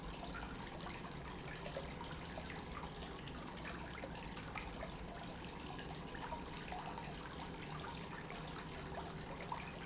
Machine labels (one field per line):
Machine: pump